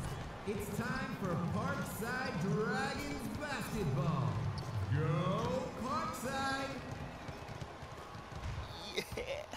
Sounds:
Basketball bounce, Speech

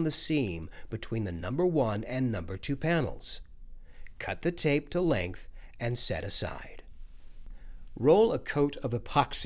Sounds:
Speech

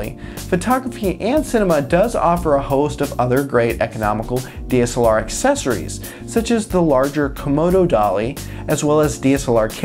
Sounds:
Music, Speech

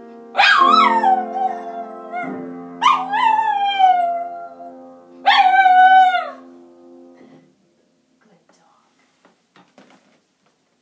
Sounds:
dog howling

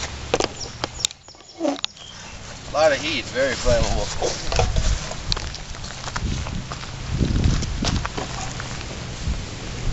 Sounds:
Speech, outside, rural or natural

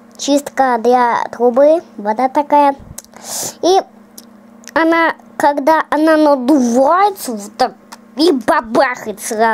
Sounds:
baby babbling

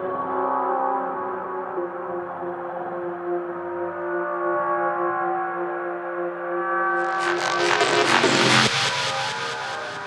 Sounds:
Music, Dubstep, Electronic music

